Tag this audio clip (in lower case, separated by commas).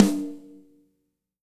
snare drum, music, percussion, musical instrument, drum